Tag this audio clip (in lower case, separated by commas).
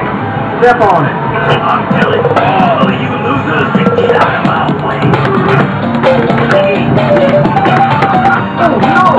speech, music